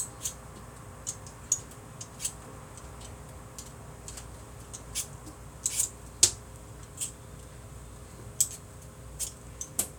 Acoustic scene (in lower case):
kitchen